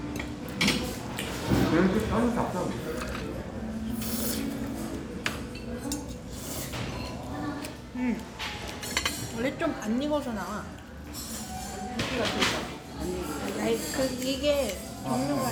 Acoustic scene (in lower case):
restaurant